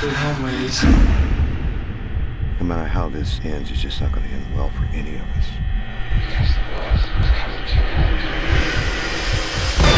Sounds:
speech

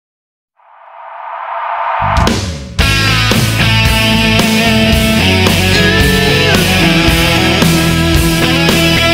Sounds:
music, guitar, progressive rock

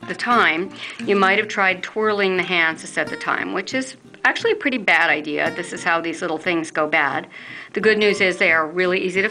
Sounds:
music, speech

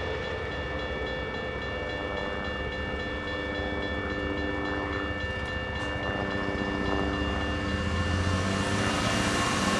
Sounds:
train horning

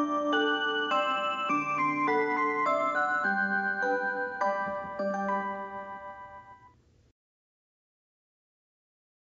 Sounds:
music

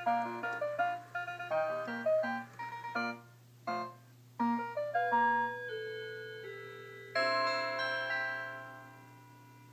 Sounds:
tick-tock, music

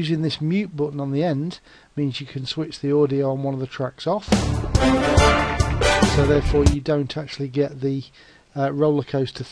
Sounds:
speech, music

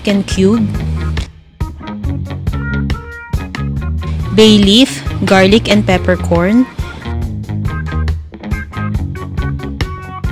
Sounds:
music, speech

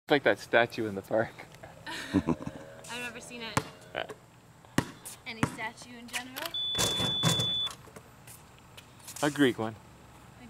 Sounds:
speech, basketball bounce

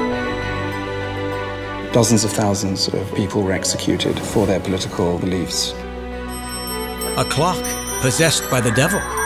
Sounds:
music, speech

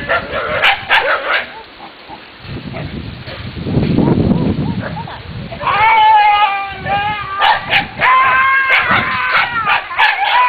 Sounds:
dog, domestic animals, yip, animal, speech, whimper (dog)

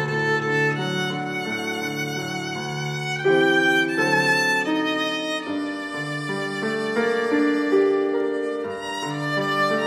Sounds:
musical instrument, music, fiddle

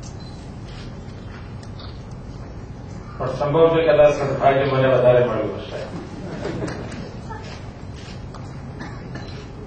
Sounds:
man speaking, speech

